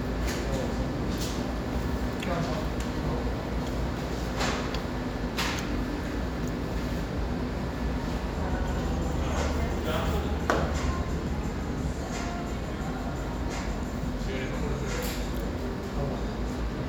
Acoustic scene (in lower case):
cafe